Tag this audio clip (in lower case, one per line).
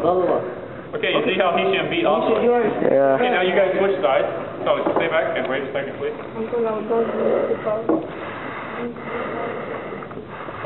inside a large room or hall
speech